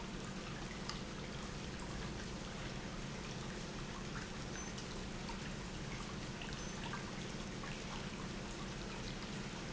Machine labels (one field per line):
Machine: pump